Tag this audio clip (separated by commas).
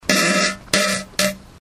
Fart